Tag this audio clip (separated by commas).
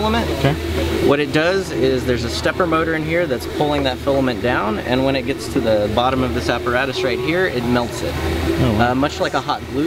Printer, Speech